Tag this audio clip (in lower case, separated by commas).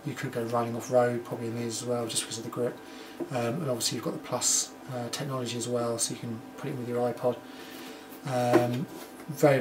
speech